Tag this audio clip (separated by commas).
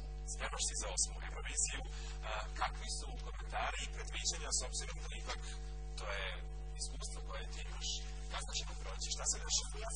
Speech